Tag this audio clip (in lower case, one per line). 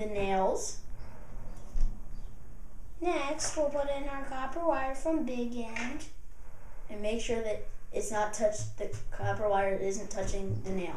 speech